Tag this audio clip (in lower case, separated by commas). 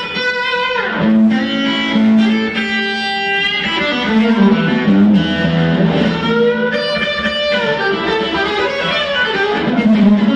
musical instrument, guitar, electric guitar, playing electric guitar, music, plucked string instrument, strum